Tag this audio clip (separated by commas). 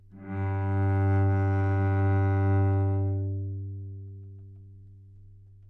Music, Musical instrument, Bowed string instrument